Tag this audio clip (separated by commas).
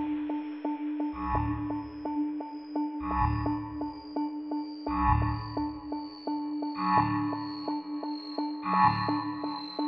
Music